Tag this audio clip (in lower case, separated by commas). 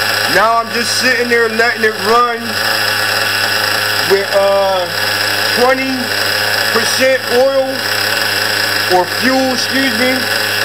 speech, idling, engine